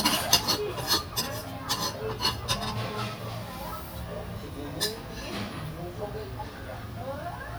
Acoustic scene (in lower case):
restaurant